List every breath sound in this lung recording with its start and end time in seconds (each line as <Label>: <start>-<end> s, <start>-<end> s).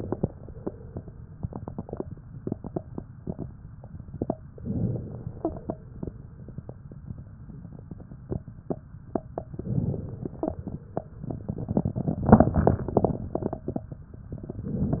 Inhalation: 4.61-5.67 s, 9.54-10.61 s
Crackles: 4.61-5.67 s, 9.54-10.61 s